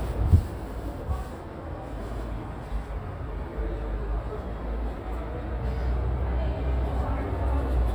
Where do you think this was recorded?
in a subway station